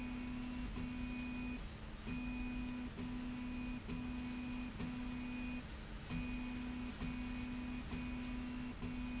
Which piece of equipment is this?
slide rail